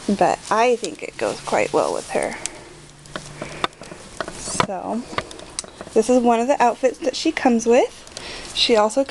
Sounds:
speech, crackle

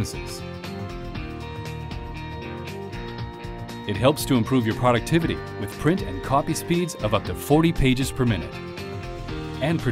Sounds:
speech, music

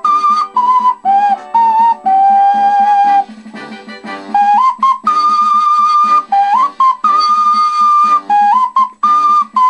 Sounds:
musical instrument, flute, music, inside a small room

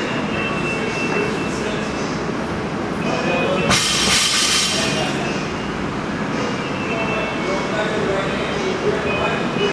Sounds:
speech

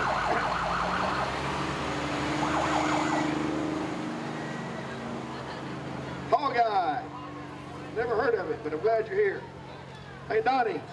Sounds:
vehicle, speech, truck, emergency vehicle

